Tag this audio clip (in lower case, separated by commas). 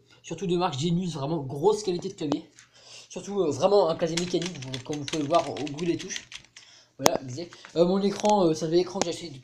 speech